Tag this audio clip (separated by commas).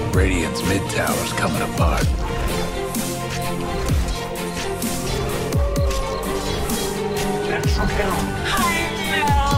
Speech, Music